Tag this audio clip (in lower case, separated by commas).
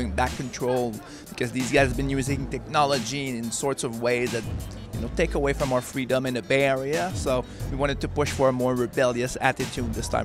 speech, music